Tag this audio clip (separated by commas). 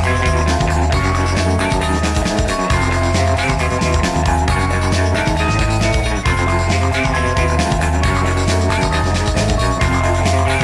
Music